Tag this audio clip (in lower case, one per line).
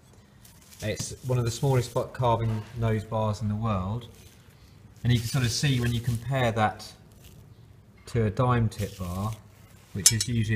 speech